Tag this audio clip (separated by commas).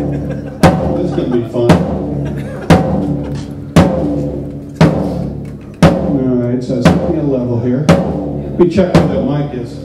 Speech, Music